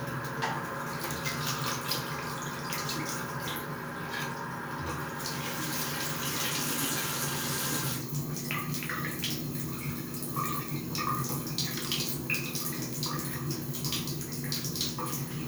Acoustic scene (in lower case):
restroom